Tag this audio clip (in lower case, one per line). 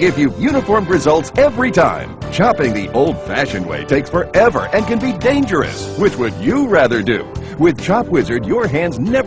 music
speech